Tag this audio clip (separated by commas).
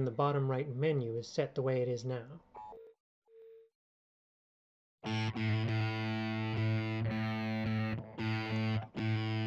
Electric guitar, Guitar, Music, Speech, Musical instrument